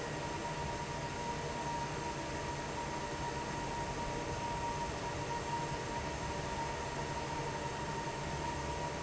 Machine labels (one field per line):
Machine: fan